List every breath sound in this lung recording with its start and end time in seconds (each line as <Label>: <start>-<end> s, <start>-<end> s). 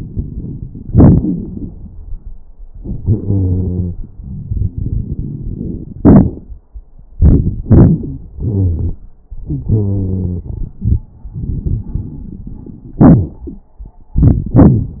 Wheeze: 3.00-3.99 s, 8.40-9.03 s, 9.47-10.48 s